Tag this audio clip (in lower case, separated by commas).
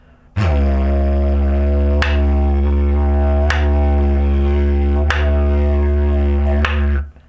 music, musical instrument